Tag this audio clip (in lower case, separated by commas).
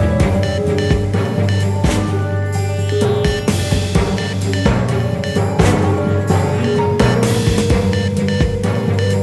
music